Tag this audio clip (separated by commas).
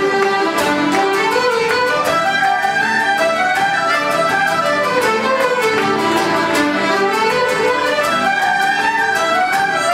Music, New-age music, Rhythm and blues